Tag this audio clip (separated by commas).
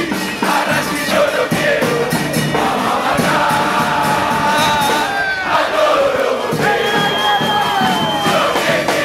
outside, urban or man-made, Crowd, Music